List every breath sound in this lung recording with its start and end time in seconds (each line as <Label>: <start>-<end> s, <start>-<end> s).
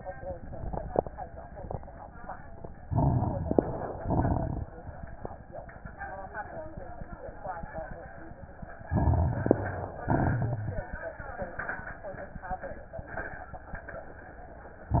Inhalation: 2.85-3.97 s, 8.90-9.98 s
Exhalation: 4.02-4.69 s, 10.11-10.89 s
Crackles: 2.85-3.97 s, 4.02-4.69 s, 8.90-9.98 s, 10.11-10.89 s